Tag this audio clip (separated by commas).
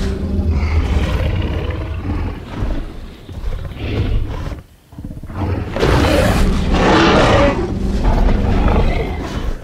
dinosaurs bellowing